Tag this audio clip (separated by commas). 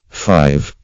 Male speech, Human voice, Speech